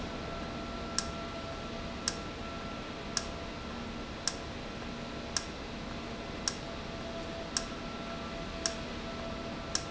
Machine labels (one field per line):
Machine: valve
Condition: normal